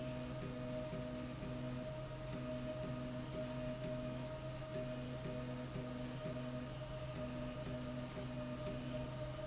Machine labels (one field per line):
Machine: slide rail